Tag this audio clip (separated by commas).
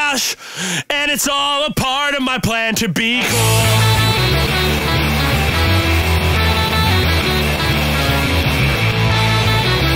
Ska, Music, Punk rock, Song